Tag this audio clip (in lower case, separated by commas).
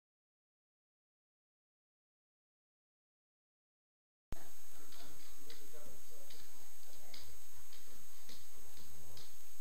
speech